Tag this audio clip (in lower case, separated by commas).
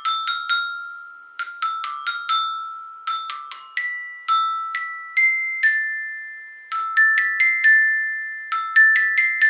playing glockenspiel